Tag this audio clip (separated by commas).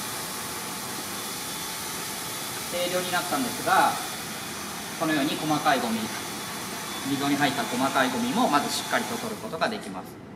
vacuum cleaner cleaning floors